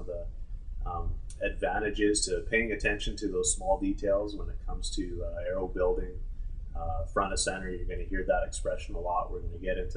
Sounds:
Speech

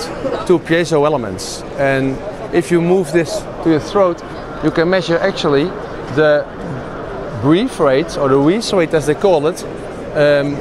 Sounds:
Speech

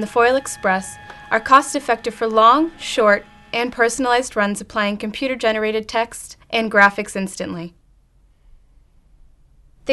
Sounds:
Speech, Printer

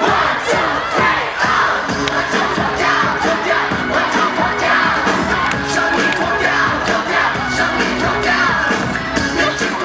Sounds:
Music

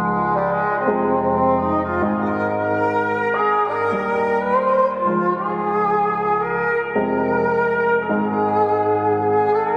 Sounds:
Music

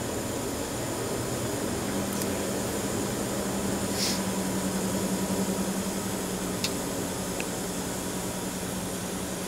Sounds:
inside a small room, Speech

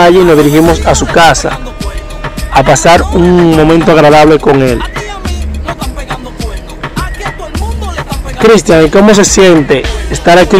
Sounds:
Music, Christmas music, Speech

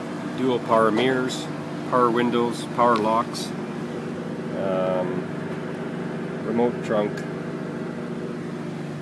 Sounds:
Car, Speech

